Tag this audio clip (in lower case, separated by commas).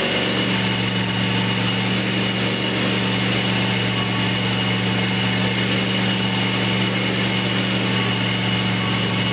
heavy engine (low frequency)